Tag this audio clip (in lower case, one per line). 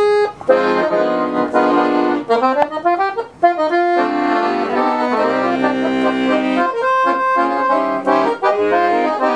music